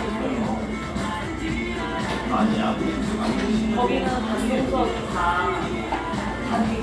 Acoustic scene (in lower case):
cafe